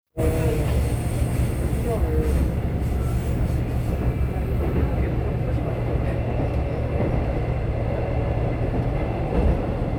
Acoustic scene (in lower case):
subway train